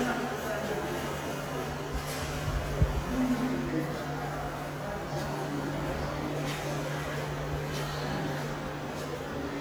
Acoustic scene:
subway station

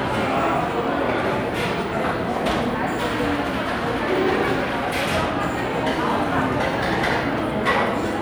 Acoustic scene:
crowded indoor space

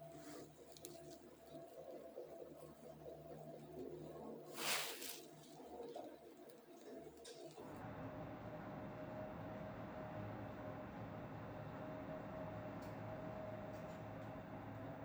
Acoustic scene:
elevator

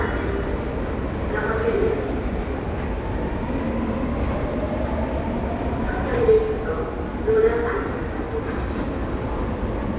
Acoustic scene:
subway station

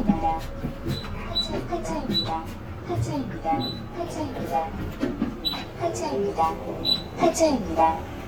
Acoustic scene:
bus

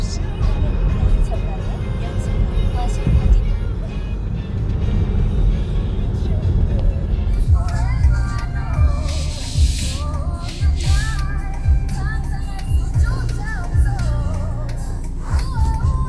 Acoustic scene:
car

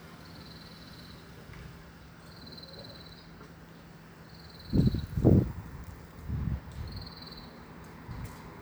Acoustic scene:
street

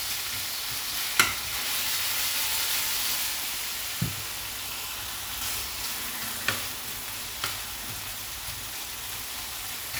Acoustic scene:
kitchen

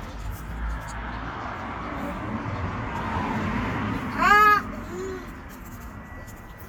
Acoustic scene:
street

